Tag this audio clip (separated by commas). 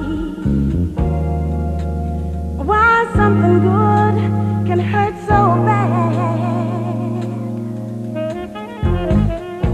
Music